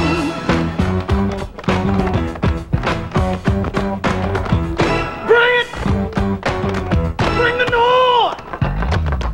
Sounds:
music

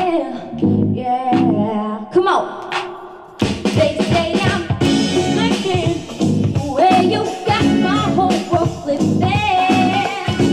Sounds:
female singing, music

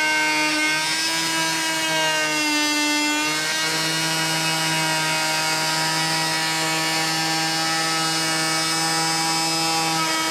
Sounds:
power tool, tools

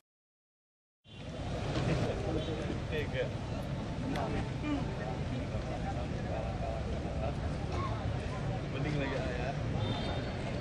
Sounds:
speech

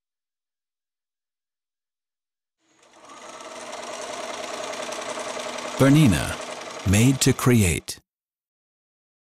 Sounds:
speech

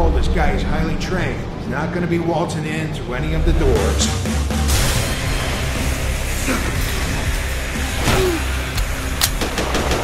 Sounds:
speech, music

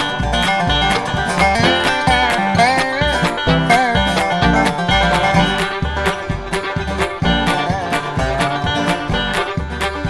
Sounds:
music

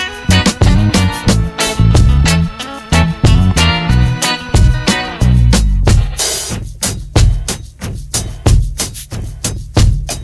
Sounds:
drum kit, snare drum, drum, bass drum, percussion, rimshot

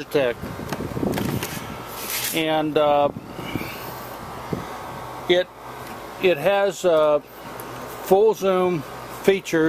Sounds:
speech

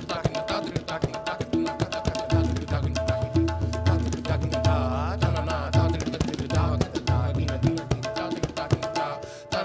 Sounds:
music, percussion

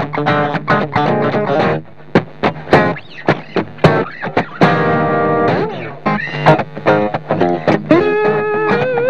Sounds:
music, guitar

